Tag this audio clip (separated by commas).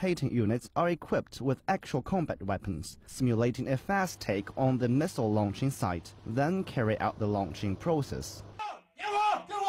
Vehicle, inside a small room, Speech